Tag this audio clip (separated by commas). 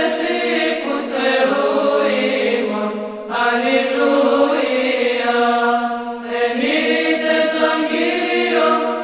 Mantra